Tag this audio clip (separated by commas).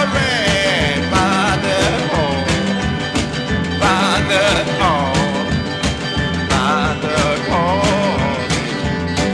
Music